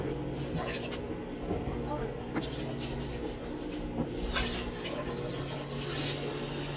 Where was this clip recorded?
in a kitchen